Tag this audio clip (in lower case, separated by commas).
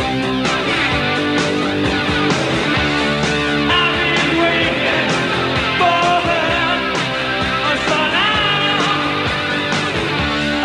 music